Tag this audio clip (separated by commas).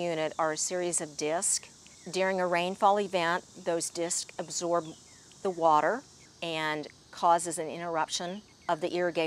Speech